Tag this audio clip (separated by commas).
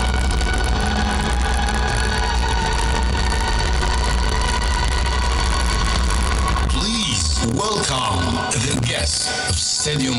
Speech, Music